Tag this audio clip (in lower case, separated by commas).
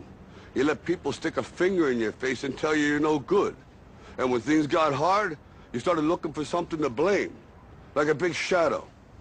speech